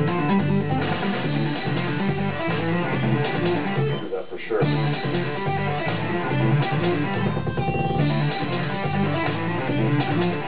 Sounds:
bass guitar, plucked string instrument, strum, music, musical instrument, guitar

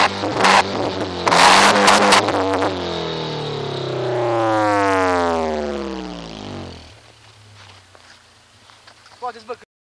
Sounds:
speech

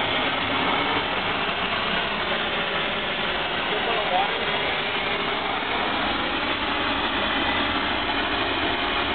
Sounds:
speech, spray

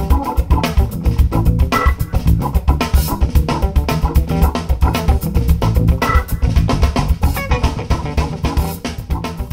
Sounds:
drum, musical instrument, drum kit, music

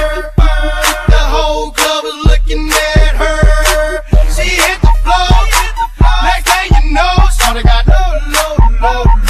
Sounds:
music

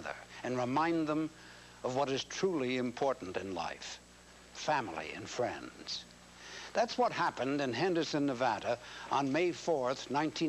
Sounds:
speech

